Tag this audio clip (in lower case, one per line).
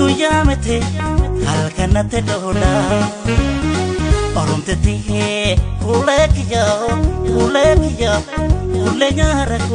music